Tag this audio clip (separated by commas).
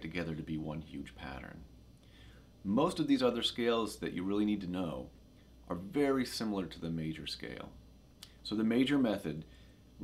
Speech